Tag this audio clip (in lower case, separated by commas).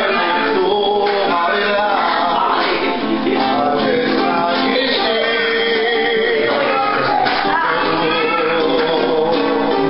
speech, music, male singing